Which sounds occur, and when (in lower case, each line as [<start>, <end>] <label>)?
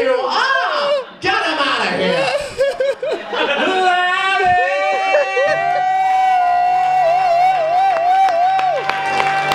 [0.00, 1.03] male singing
[0.00, 9.54] background noise
[0.31, 0.95] laughter
[1.20, 9.54] male singing
[2.35, 3.28] laughter
[4.44, 5.85] laughter
[6.73, 6.92] clapping
[7.14, 7.31] clapping
[7.51, 7.67] clapping
[7.85, 8.02] clapping
[8.22, 8.36] clapping
[8.54, 8.67] clapping
[8.88, 9.00] clapping
[9.19, 9.30] clapping
[9.48, 9.54] clapping